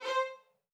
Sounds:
musical instrument, bowed string instrument, music

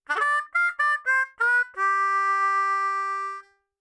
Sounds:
musical instrument, music, harmonica

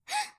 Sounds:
respiratory sounds, gasp, breathing

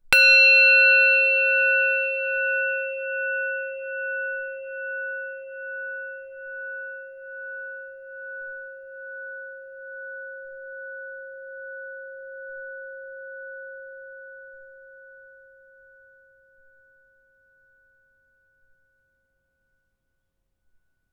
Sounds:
musical instrument, music

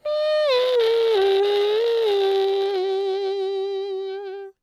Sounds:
human voice, singing

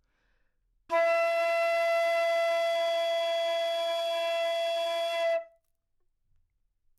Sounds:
music, wind instrument, musical instrument

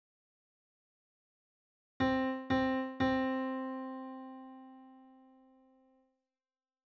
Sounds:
piano, keyboard (musical), musical instrument, music

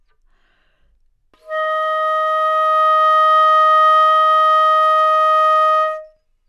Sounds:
musical instrument, wind instrument, music

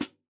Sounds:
musical instrument, cymbal, hi-hat, percussion, music

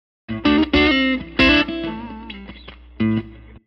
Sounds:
plucked string instrument, music, musical instrument, guitar

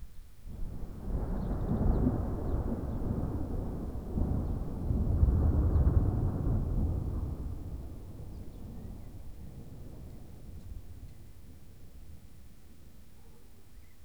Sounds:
thunder, thunderstorm

